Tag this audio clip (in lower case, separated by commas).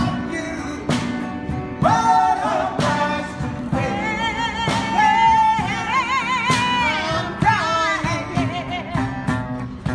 music, singing